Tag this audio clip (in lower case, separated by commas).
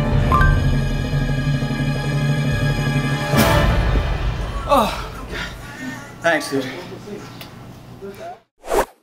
speech, music